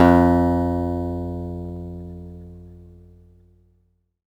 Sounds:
plucked string instrument, guitar, music, musical instrument, acoustic guitar

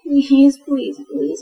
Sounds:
woman speaking, speech, human voice

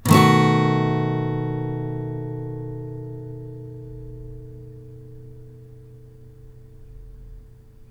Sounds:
guitar, acoustic guitar, plucked string instrument, musical instrument, music

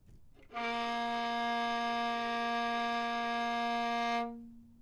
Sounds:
musical instrument, music, bowed string instrument

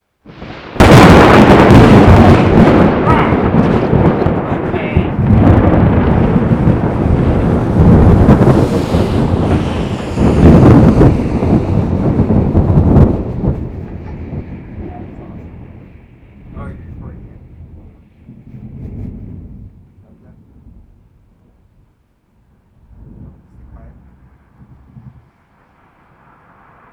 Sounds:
thunder, thunderstorm

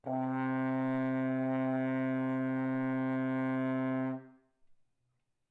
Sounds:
musical instrument, brass instrument, music

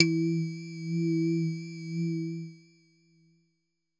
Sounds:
keyboard (musical), musical instrument, music

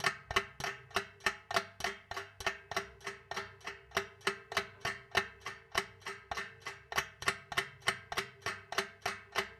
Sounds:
clock, mechanisms

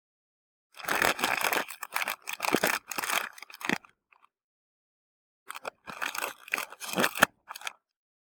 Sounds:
crumpling

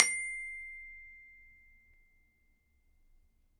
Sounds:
music, percussion, musical instrument, mallet percussion, glockenspiel

